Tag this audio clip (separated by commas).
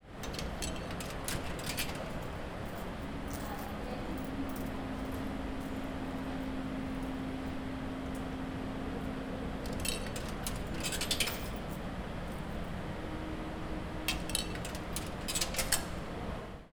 Coin (dropping), home sounds